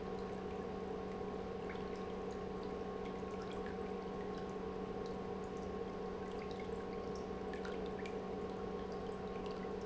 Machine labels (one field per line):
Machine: pump